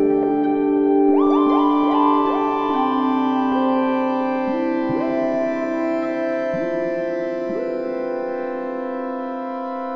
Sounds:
keyboard (musical), ambient music, music, electric piano, electronica, musical instrument, piano, new-age music, playing piano, synthesizer

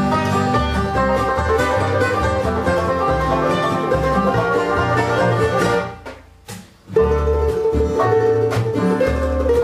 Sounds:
banjo, guitar, music

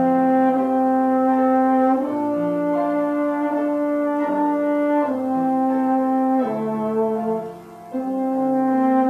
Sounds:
music, french horn

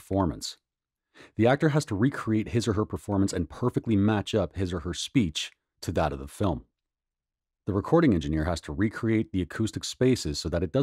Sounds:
speech

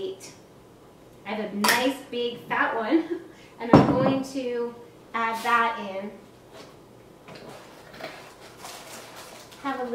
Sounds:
speech

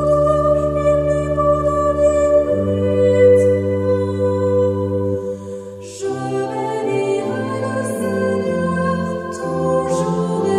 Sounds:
mantra, music

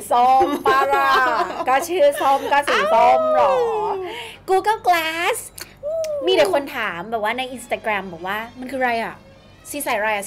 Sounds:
music, speech

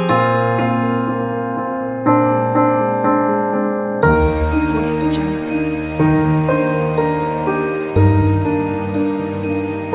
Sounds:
music, wedding music

